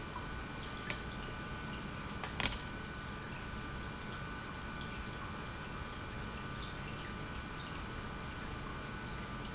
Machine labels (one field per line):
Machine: pump